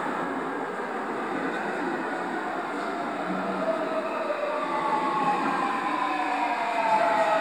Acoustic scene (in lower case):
subway station